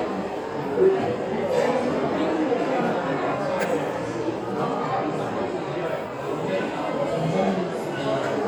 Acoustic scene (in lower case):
restaurant